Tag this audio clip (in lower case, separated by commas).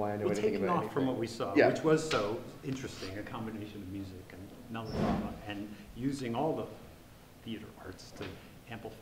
speech